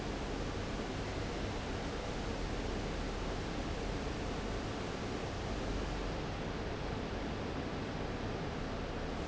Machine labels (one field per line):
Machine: fan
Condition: abnormal